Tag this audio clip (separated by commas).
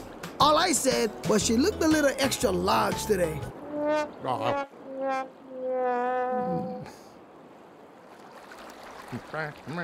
Speech, Music